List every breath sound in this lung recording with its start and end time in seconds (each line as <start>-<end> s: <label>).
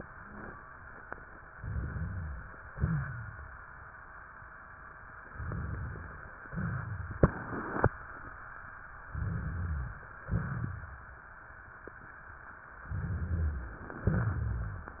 1.53-2.56 s: rhonchi
1.53-2.72 s: inhalation
2.75-3.61 s: exhalation
2.75-3.61 s: wheeze
5.29-6.38 s: inhalation
6.44-7.22 s: exhalation
9.10-10.21 s: inhalation
9.10-10.21 s: rhonchi
10.25-11.25 s: exhalation
10.25-11.25 s: rhonchi
12.86-13.83 s: inhalation
12.86-13.83 s: rhonchi